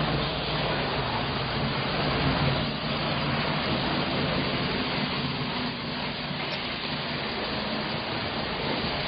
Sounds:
Vehicle

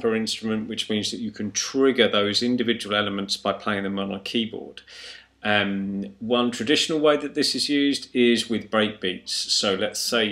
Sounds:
Speech

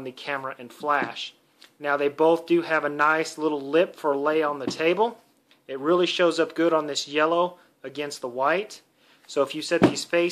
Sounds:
Speech

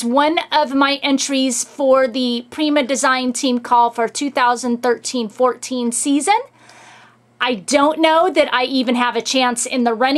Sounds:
Speech

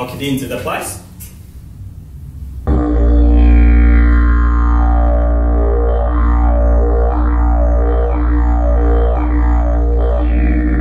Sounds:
playing didgeridoo

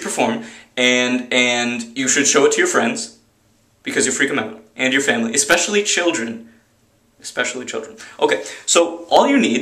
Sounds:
Speech

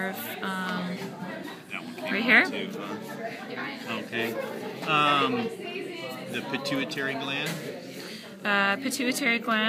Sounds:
Speech

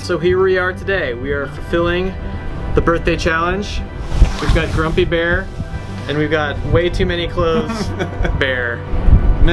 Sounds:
Speech, Music

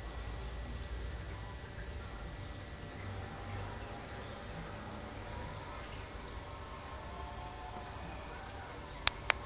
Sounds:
outside, rural or natural

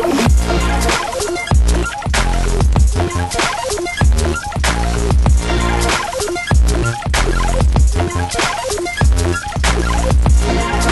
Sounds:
Drum and bass, Music

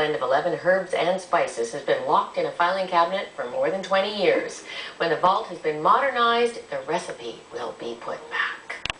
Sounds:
Speech

